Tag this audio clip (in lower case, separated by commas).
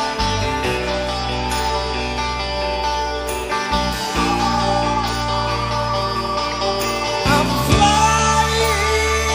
music